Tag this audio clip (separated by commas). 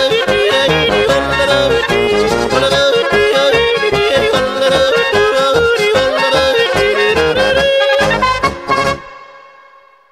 yodelling